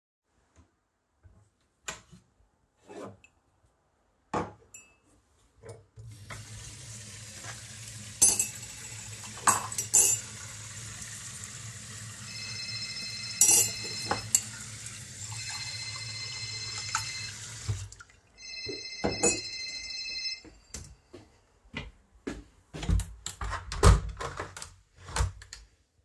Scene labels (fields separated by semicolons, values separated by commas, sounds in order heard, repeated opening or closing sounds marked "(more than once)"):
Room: kitchen; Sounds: running water, cutlery and dishes, phone ringing, footsteps, window